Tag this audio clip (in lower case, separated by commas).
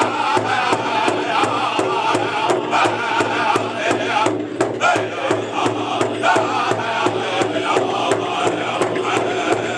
musical instrument, music, drum